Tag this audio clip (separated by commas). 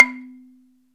Wood